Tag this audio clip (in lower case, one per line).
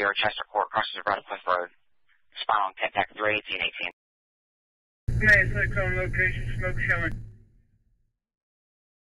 speech